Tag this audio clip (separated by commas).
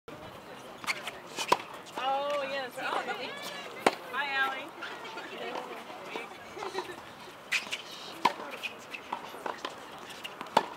Speech